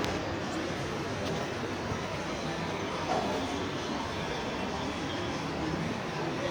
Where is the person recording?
in a crowded indoor space